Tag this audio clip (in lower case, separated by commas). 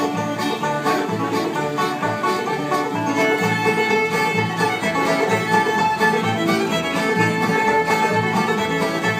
guitar, plucked string instrument, musical instrument, music, banjo